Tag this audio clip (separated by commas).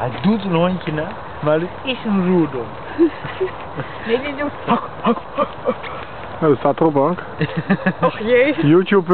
Speech